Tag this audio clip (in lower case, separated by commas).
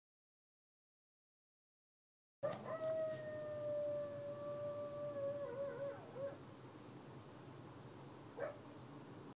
dog, pets, animal, howl, canids